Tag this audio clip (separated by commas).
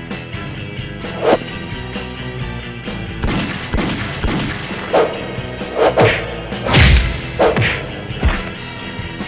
Fusillade, Music